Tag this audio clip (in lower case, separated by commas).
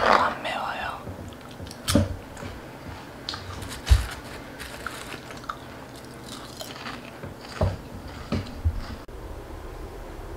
people eating crisps